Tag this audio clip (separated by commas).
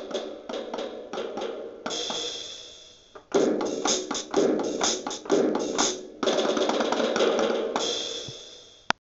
Drum kit, Music, Musical instrument, Drum